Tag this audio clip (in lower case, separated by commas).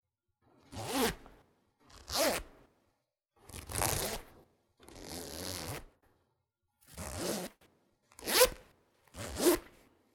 home sounds, zipper (clothing)